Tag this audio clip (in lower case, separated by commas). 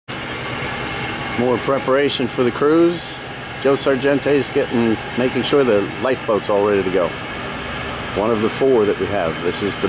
vehicle, speech, engine, outside, urban or man-made